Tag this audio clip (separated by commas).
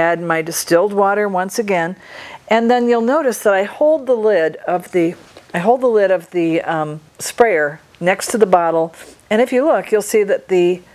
Speech